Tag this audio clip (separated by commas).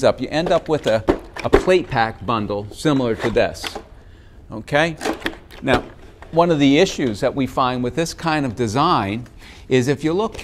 Speech